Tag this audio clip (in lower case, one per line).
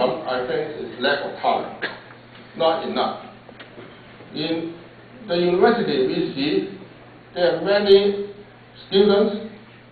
narration
man speaking
speech